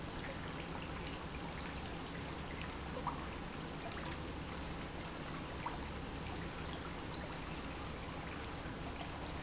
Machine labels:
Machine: pump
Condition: normal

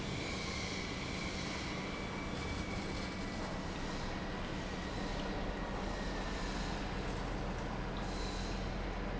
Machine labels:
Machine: pump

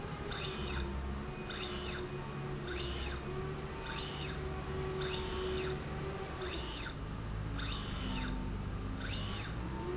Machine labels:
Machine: slide rail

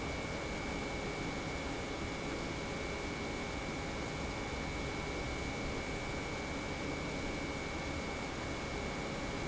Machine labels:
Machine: pump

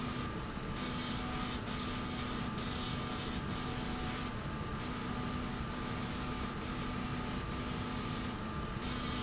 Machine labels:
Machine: slide rail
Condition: abnormal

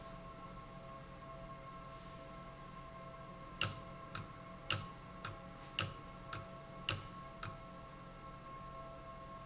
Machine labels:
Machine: valve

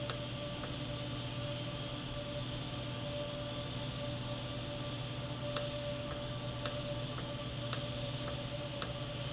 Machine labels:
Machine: valve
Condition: normal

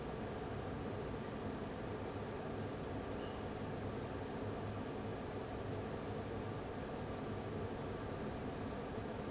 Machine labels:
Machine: fan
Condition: abnormal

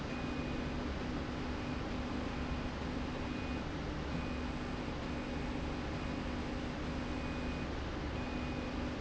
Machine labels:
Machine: slide rail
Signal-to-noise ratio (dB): -6 dB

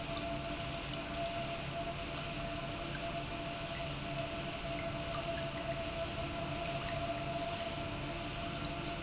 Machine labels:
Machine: pump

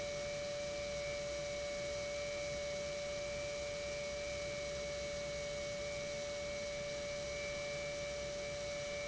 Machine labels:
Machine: pump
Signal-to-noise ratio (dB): 6 dB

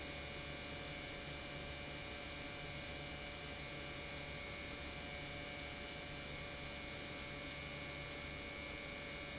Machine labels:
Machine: pump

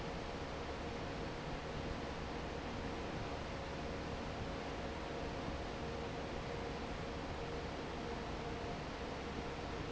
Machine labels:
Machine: fan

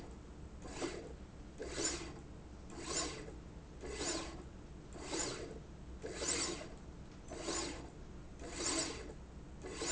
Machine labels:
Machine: slide rail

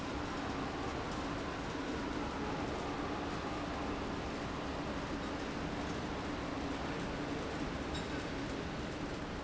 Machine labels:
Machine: fan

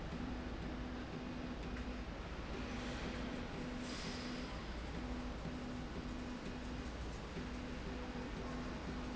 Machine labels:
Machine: slide rail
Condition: normal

